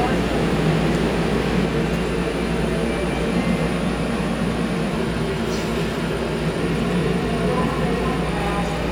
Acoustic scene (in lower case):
subway station